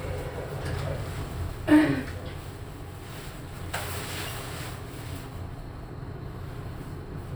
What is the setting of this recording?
elevator